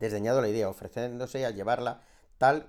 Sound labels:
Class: speech